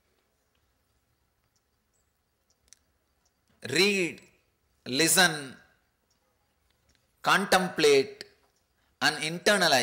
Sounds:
Speech, inside a large room or hall

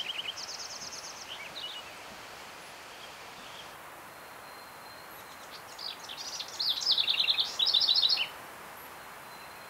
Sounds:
wood thrush calling

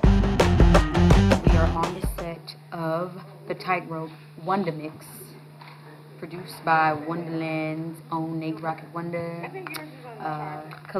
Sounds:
Speech, Music

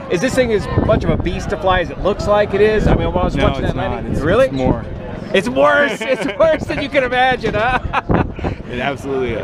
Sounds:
Speech

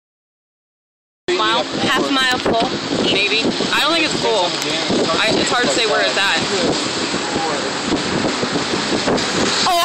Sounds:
Eruption

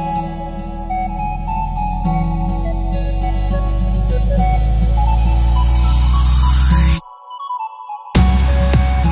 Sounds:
Music

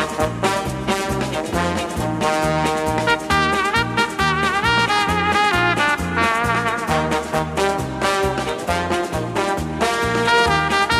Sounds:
Music

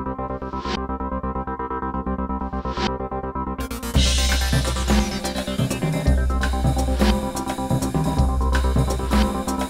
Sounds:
Music

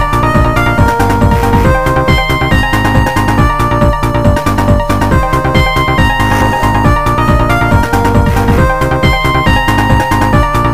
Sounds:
Video game music, Music

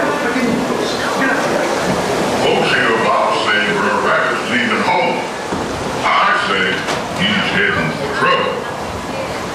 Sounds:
Water, Speech

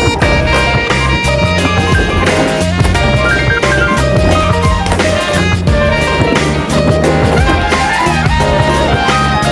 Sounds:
Music, Skateboard

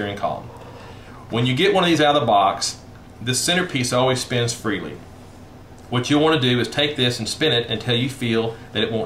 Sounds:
Speech

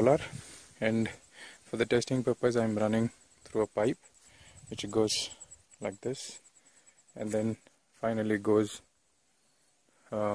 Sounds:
Speech

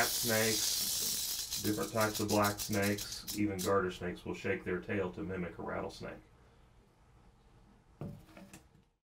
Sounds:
Snake

